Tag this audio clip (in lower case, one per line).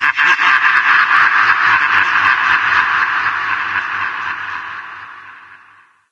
human voice
laughter